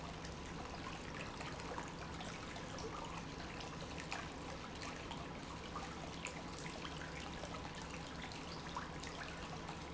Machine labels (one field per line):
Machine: pump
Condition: normal